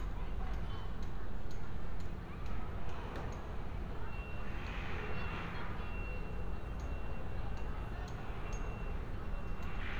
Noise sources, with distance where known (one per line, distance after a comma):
engine of unclear size
unidentified alert signal, far